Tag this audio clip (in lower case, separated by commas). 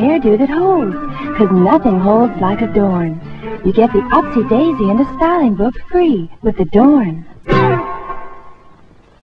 music, speech